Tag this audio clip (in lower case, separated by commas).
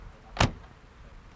vehicle, motor vehicle (road), car